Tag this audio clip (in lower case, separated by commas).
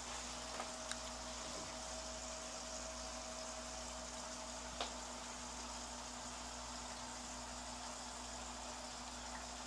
stream